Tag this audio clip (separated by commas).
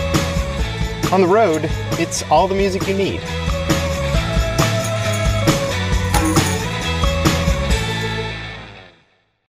Music, Speech